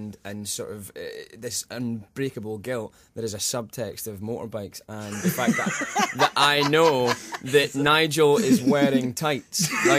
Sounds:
speech

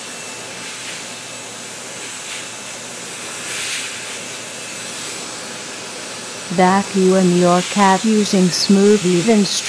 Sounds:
speech

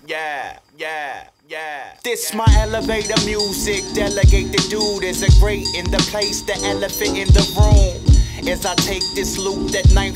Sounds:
music

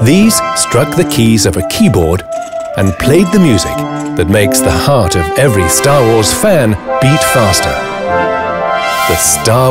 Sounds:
rattle, speech, music

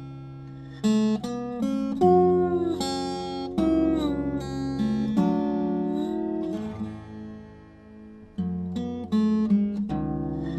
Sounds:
slide guitar

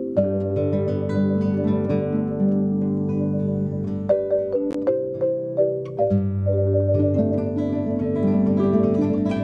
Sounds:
vibraphone, music

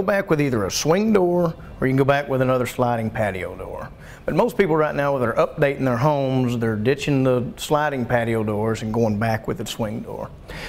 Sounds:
speech

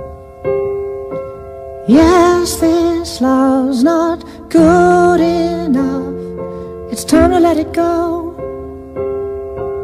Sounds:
musical instrument, keyboard (musical), music, piano

